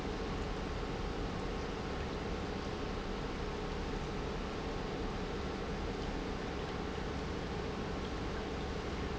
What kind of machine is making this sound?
pump